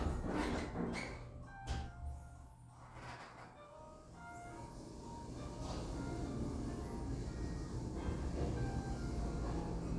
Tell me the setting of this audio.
elevator